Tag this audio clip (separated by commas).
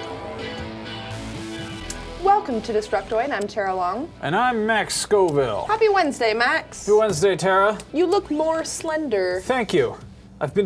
Music, Speech